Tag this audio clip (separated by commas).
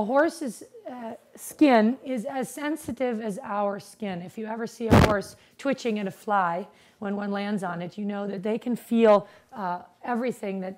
Speech